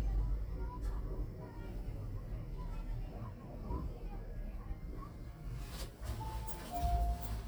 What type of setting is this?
elevator